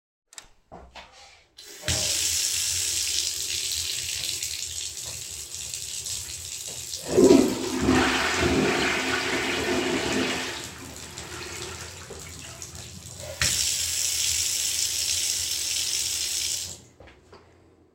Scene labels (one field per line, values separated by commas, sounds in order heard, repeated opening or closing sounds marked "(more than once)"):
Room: bathroom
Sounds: running water, toilet flushing